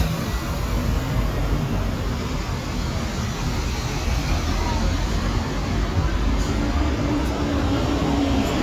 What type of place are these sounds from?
street